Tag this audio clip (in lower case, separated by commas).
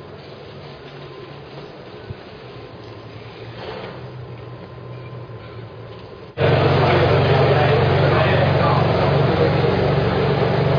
speech